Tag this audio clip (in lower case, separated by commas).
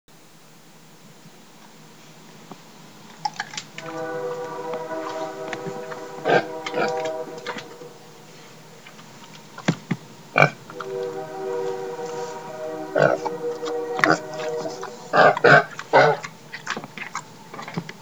livestock, animal